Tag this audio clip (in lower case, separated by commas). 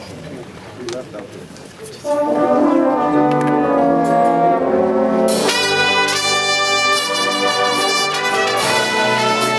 music, speech